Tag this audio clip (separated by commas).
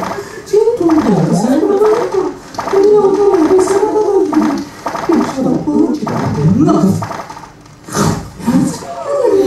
Speech